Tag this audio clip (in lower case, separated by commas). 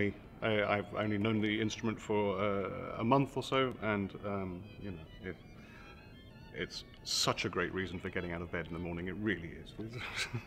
musical instrument, speech, violin, music